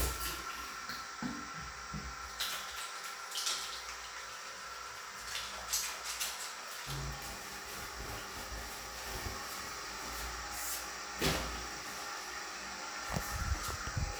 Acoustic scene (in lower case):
restroom